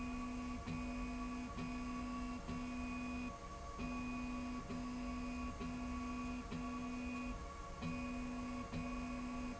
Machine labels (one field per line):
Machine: slide rail